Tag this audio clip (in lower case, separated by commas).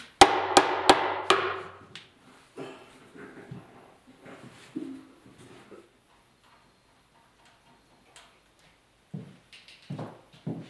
sliding door